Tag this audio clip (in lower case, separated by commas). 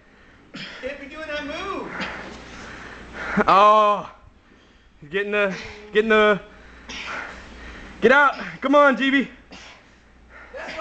speech